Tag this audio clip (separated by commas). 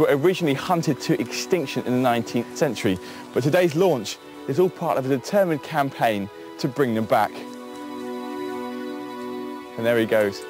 Speech, Music